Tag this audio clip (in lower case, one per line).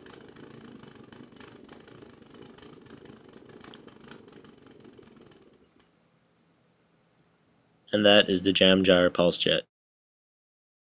speech